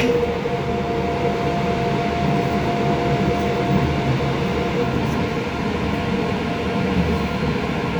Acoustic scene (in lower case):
subway train